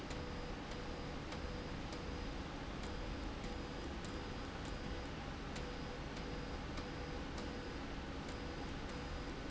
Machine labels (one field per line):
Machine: slide rail